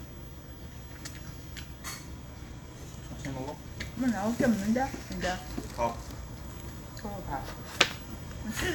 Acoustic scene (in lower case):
restaurant